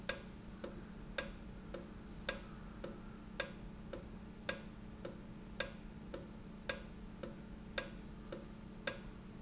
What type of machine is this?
valve